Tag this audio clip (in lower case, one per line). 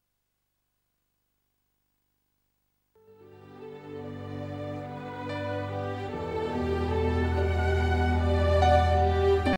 musical instrument
music
fiddle